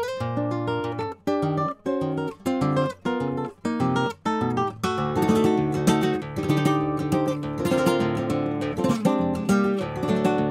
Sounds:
electric guitar
acoustic guitar
guitar
music
strum

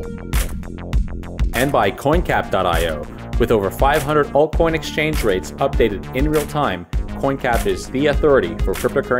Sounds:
music
speech

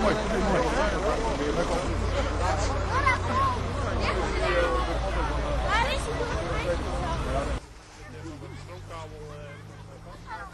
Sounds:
speech
vehicle

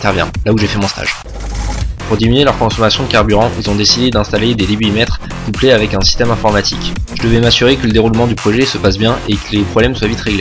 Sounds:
speech
music

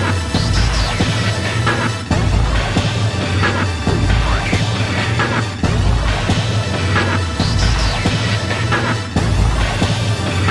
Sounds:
video game music
music
theme music
soundtrack music

